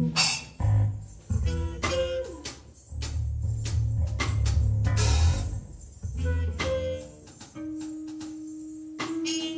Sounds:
Musical instrument, Percussion, Trumpet, Flute, Music

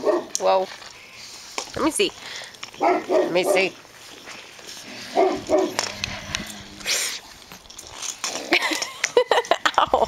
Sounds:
Domestic animals, Bark, Dog, Animal

